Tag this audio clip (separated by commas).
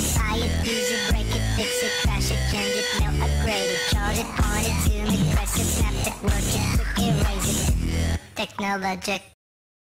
Music